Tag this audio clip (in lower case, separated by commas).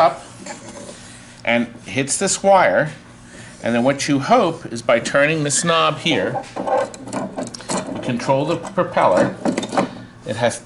speech, inside a small room